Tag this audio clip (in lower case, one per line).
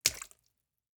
splatter
liquid
water